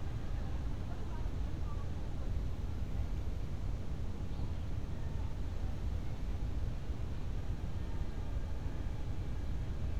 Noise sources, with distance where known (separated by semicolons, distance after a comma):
person or small group talking, far